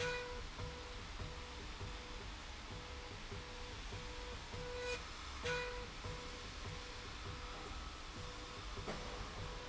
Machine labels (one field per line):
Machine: slide rail